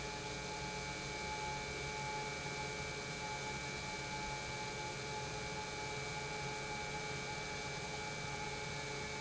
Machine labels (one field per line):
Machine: pump